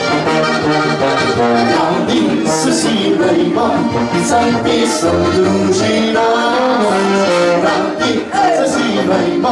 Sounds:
Musical instrument, Music, Accordion

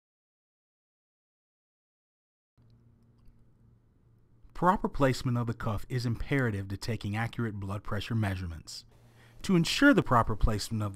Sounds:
Speech

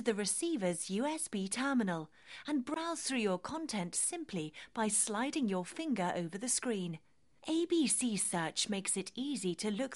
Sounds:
Speech

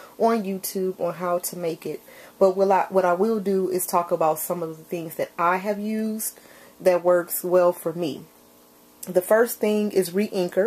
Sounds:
Speech

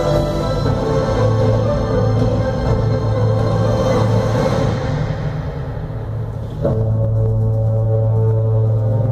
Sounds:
inside a large room or hall, Music

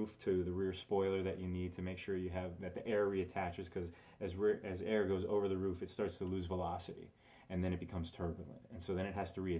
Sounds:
Speech

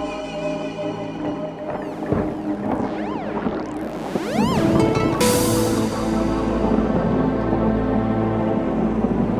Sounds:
Electronic music, Music

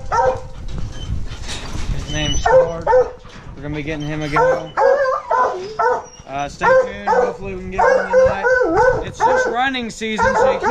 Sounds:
dog baying

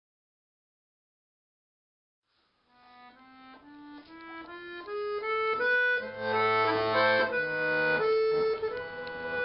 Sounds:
Music, Musical instrument, Violin, Classical music

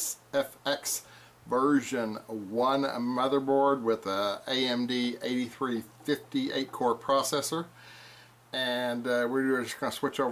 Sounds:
Speech

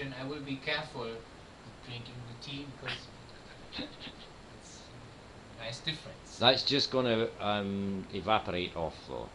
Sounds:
Speech

